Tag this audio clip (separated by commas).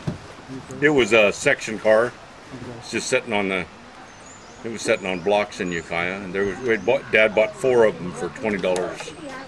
Speech